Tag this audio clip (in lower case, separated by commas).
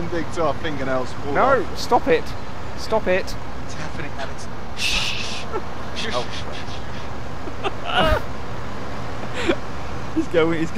speech